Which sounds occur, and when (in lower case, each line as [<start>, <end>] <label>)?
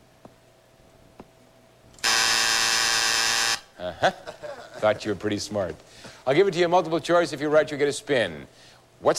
[0.00, 9.15] background noise
[0.16, 0.28] tap
[1.11, 1.24] tap
[1.92, 3.56] buzzer
[3.73, 4.78] laughter
[4.82, 5.76] male speech
[5.79, 6.26] breathing
[6.19, 8.44] male speech
[8.51, 8.88] breathing